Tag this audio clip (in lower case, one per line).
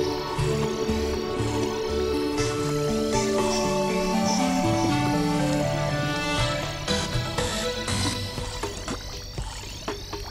music